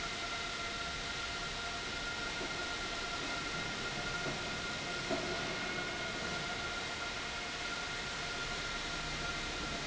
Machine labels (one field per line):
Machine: pump